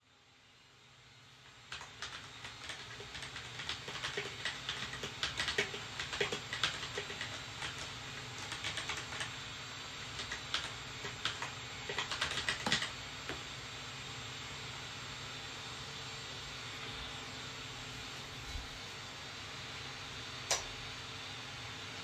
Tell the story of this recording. I start typing on my keyboard and stop for a while. Then I turn off the lights in the room. Whilst all of this is happening, a vacuum cleaner is audible in the background.